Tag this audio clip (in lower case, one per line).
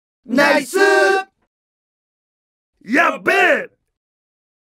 speech